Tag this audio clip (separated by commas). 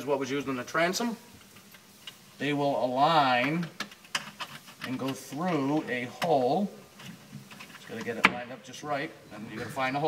Speech